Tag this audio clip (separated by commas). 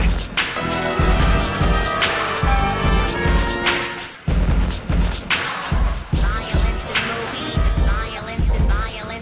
Music